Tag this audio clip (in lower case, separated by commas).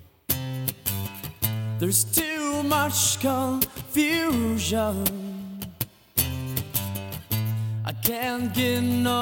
music, musical instrument